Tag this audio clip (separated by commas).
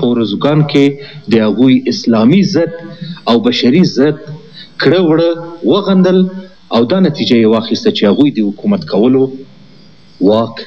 Speech, monologue, man speaking